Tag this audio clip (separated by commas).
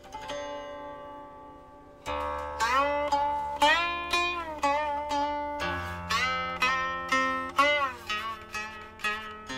Music, Zither